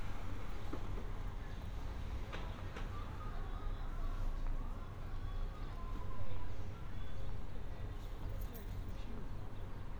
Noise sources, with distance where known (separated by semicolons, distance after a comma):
music from an unclear source; person or small group talking